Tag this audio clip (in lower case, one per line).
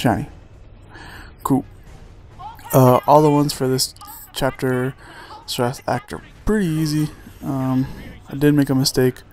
speech